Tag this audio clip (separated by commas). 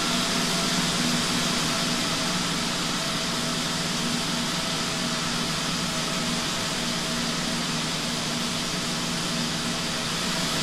Fixed-wing aircraft